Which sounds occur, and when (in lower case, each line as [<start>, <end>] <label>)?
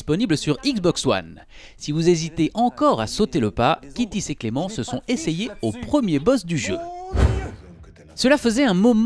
[0.00, 1.40] man speaking
[0.00, 9.05] video game sound
[0.09, 7.54] conversation
[0.10, 1.10] woman speaking
[1.45, 1.72] breathing
[1.78, 4.97] man speaking
[5.07, 6.67] man speaking
[6.03, 6.28] human voice
[6.62, 7.48] shout
[7.09, 7.63] sound effect
[7.50, 9.05] man speaking